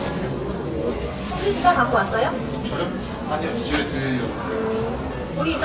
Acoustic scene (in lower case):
cafe